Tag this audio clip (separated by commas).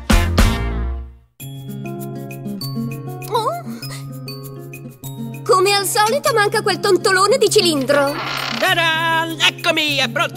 Speech, Music